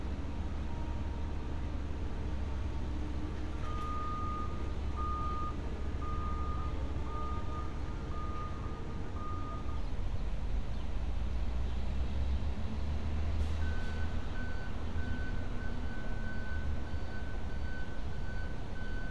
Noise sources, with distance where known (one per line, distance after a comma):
reverse beeper